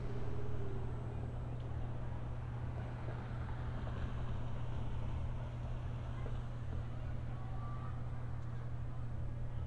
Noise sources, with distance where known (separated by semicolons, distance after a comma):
unidentified human voice, far